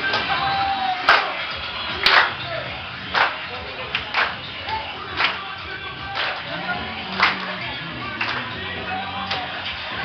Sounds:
Music, Singing, inside a small room

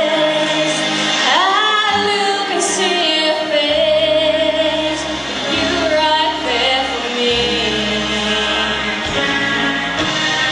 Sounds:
Music, Female singing

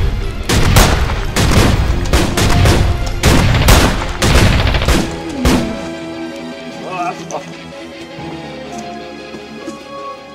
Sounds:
Gunshot

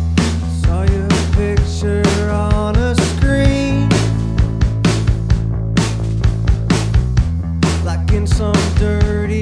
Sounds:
Music, Sound effect

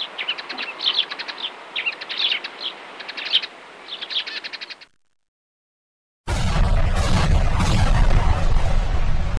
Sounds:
tweet

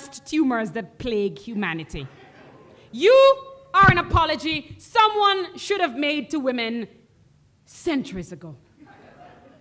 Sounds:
Speech

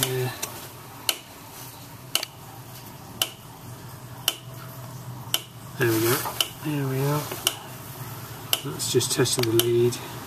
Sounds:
Speech, inside a small room

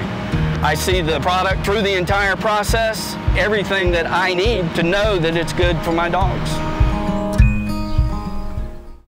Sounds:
Speech, Music

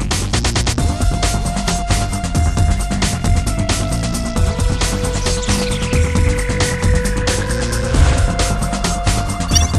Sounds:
Music

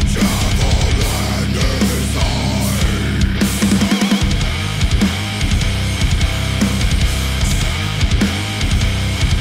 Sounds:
Pop music, Music, Funk

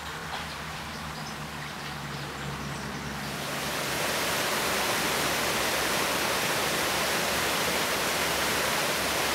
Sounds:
Bird

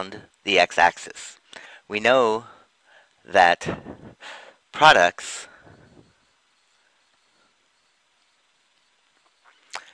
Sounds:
Speech

